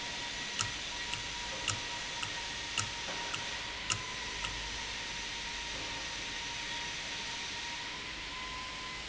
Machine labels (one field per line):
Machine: valve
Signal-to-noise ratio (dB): -6 dB